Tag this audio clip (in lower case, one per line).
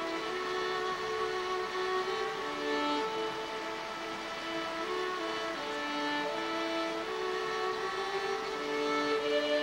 music